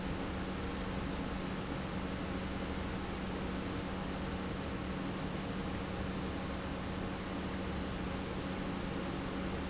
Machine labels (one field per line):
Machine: pump